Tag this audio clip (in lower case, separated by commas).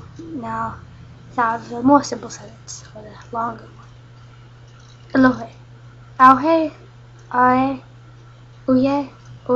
speech